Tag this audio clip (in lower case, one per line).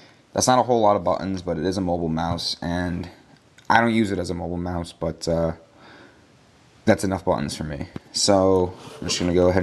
speech